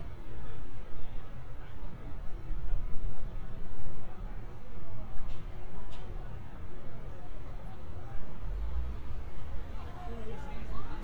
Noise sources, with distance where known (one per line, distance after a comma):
person or small group talking, far